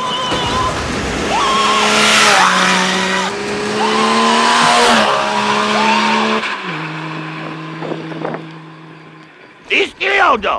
Loud screaming and truck driving by